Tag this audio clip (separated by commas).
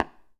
Tap